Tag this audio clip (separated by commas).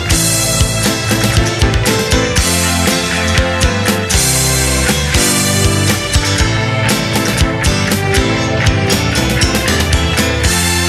Music